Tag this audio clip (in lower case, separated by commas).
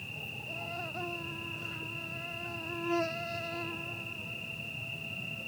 wild animals, cricket, buzz, animal, insect